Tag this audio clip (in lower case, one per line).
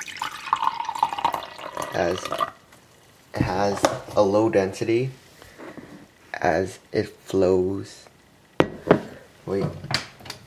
liquid
speech